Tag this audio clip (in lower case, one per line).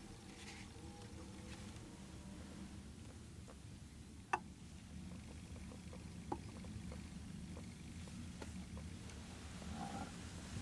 wild animals
animal